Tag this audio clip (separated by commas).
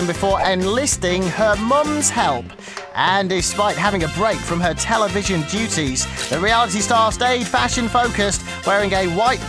Music, Speech